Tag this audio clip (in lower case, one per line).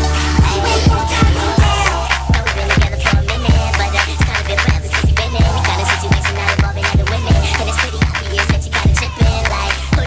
music